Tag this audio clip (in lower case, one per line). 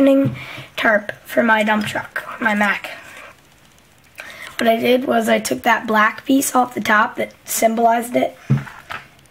speech